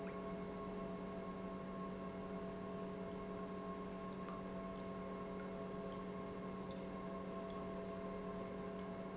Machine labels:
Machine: pump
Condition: normal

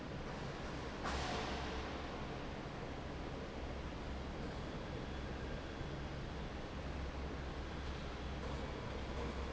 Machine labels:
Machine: fan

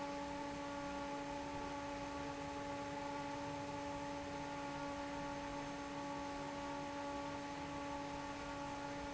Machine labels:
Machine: fan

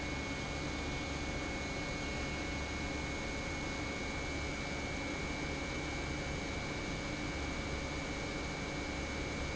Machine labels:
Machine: pump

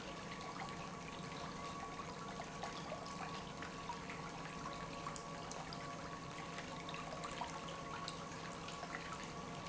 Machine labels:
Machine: pump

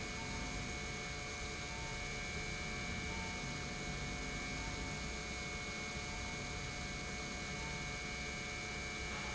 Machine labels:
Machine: pump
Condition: normal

